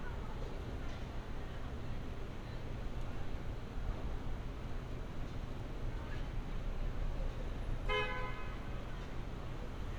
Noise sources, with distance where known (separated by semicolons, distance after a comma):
car horn, near